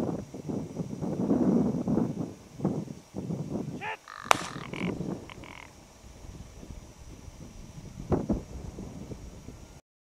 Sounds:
speech

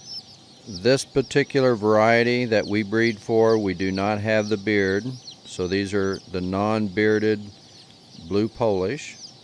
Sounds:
rooster, cluck, fowl

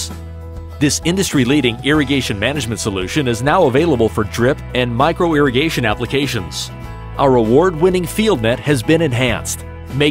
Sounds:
speech, music

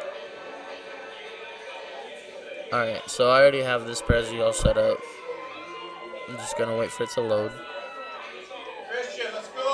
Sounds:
speech, music

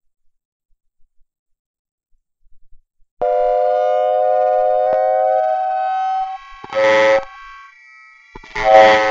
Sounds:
noise

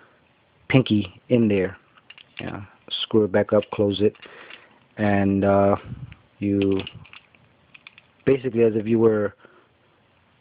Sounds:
inside a small room, speech

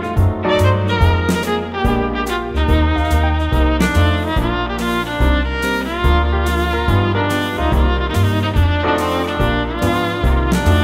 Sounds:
musical instrument, music, fiddle

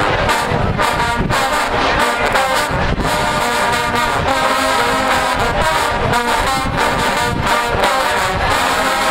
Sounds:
music

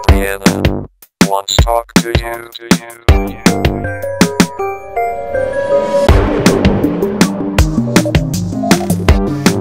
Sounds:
pop music, music, soundtrack music

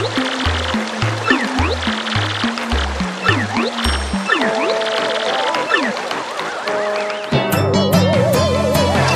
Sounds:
music

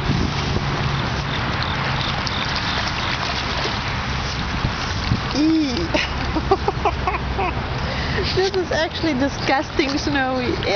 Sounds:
outside, rural or natural, speech

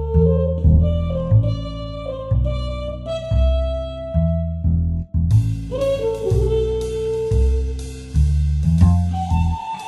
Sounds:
music

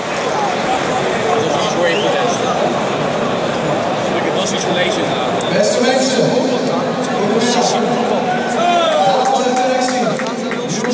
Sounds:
speech, narration, man speaking

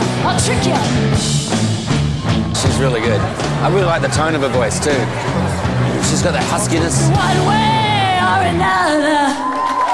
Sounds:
speech, music

